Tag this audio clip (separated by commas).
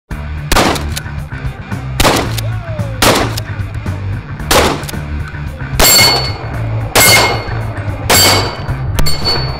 Clang, gunfire